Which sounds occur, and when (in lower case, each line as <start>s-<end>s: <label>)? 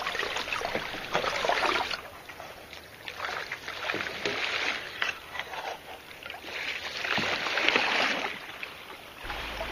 0.0s-2.0s: kayak
0.0s-9.7s: stream
3.0s-4.8s: kayak
5.0s-5.8s: kayak
6.5s-8.3s: kayak
9.2s-9.7s: kayak